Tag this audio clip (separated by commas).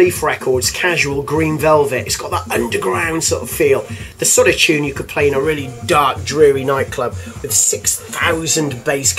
Background music, Music, Speech